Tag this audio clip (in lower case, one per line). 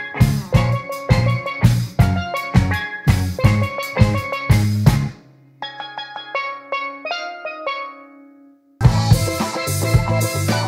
playing steelpan